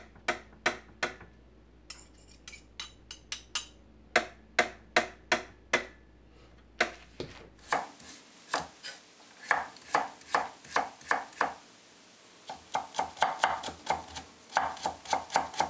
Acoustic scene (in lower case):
kitchen